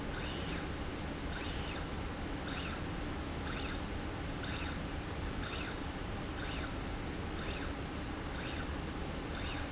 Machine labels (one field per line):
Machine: slide rail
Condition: normal